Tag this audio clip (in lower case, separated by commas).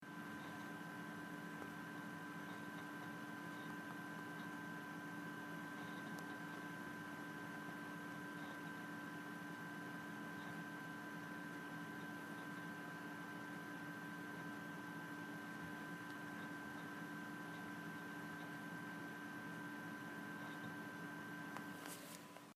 engine